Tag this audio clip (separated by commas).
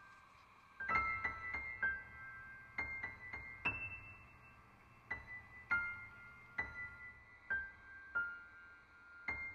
Music